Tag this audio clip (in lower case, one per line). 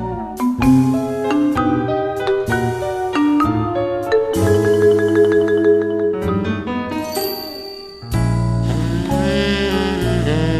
music